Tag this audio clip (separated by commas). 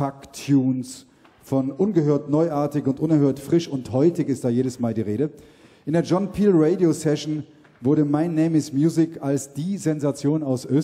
Speech